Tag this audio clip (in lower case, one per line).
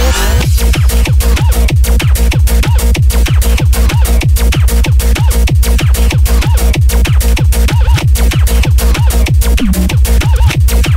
music